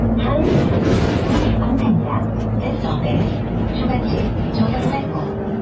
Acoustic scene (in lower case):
bus